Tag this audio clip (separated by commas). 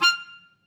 Music, Musical instrument, Wind instrument